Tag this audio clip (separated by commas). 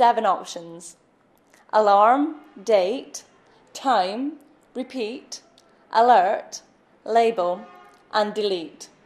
Speech